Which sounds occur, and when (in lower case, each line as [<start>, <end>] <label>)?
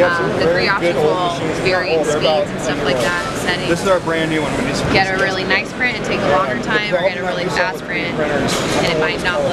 [0.01, 9.52] hubbub
[0.17, 0.91] female speech
[1.54, 2.98] female speech
[3.45, 3.92] female speech
[4.74, 8.12] female speech
[8.38, 9.52] female speech